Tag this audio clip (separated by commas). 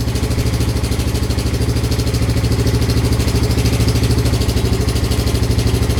Engine